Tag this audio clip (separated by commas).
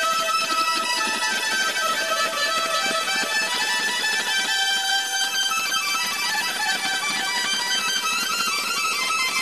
Music